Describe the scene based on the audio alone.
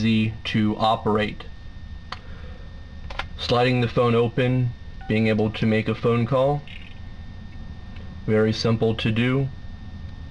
A man speaks and dials a number on a telephone